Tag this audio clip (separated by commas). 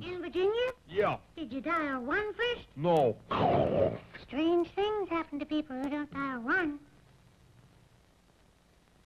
Speech